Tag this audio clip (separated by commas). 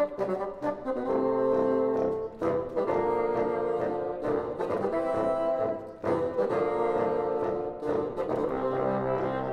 playing bassoon